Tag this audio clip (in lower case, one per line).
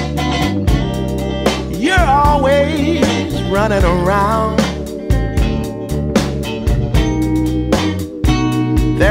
music